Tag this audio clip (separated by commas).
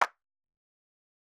Clapping, Hands